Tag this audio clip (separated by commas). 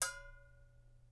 Bell